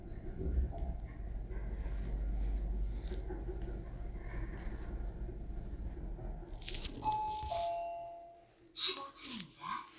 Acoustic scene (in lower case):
elevator